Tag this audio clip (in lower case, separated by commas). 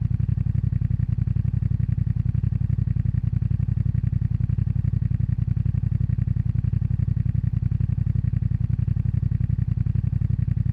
idling, engine, vehicle, motor vehicle (road), motorcycle